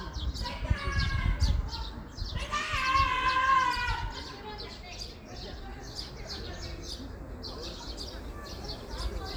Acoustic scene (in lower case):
park